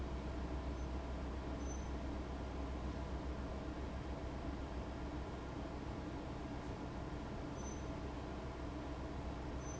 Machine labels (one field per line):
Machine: fan